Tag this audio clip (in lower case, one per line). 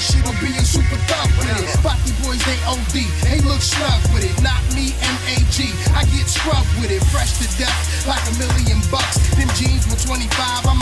soul music
music
speech
blues
disco